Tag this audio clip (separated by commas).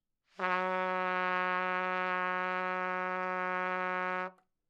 Music, Brass instrument, Trumpet, Musical instrument